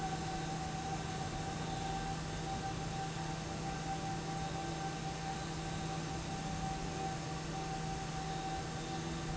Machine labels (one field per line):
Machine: fan